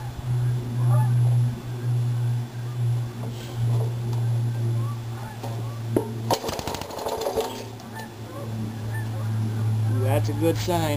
Birds are chirping and a man tries to start an engine